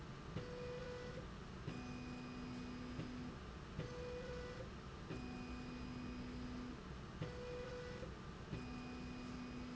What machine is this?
slide rail